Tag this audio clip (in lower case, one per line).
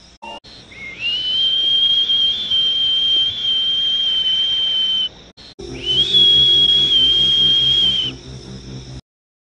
music